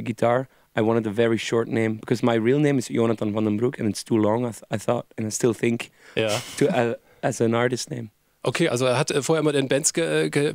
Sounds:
Speech

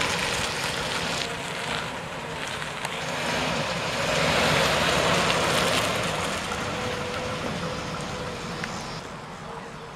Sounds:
Truck, Vehicle

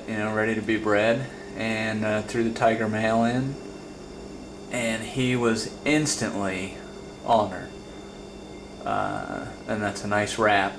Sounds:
inside a small room, Speech

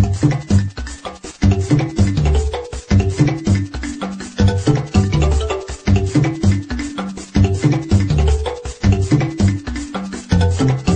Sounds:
Music, Video game music

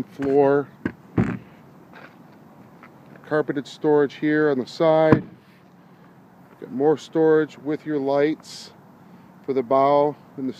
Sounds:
Speech

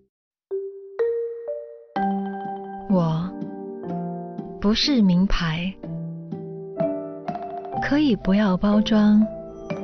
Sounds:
Music, Ping, Speech

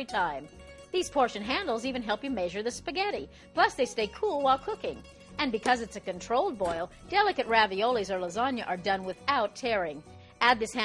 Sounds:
Speech, Music

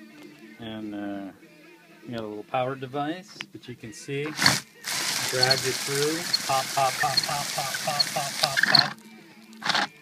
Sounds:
Speech

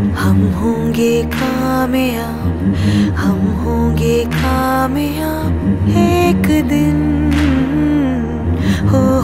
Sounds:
Music

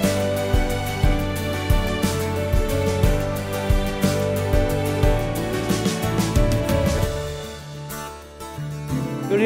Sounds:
Speech, Music, Tender music

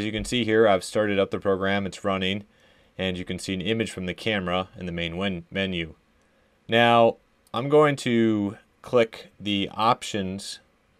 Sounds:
Speech

